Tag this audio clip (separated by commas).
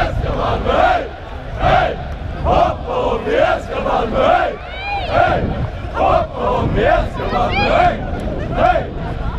Speech